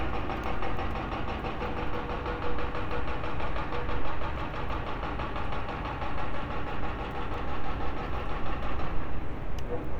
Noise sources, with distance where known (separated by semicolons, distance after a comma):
hoe ram, far